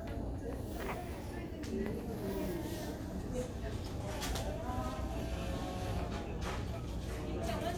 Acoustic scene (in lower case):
crowded indoor space